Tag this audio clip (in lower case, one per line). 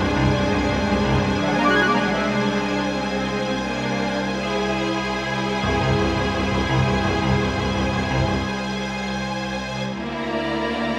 soundtrack music
theme music
music